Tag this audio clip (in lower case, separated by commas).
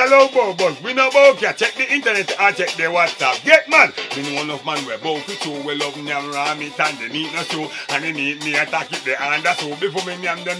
music